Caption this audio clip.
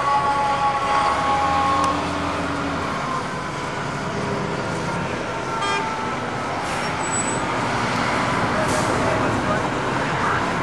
Sounds of noisy road traffic